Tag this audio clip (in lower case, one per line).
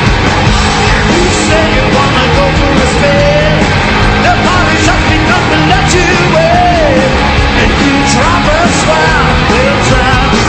rock and roll
music